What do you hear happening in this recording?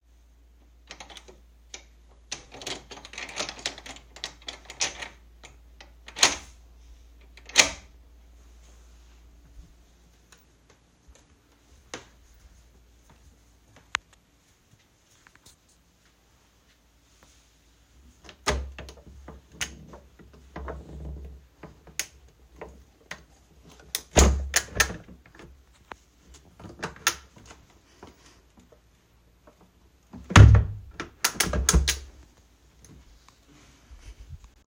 I opened the bathroom with key, then walked into. Finally, I opened the window